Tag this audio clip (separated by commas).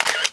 Mechanisms, Camera